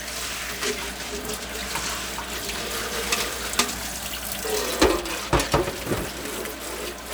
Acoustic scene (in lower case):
kitchen